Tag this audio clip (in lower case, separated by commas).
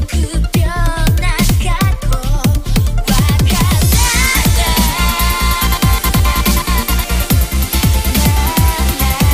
music, electronic music